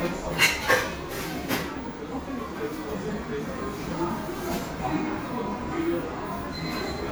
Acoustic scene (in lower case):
crowded indoor space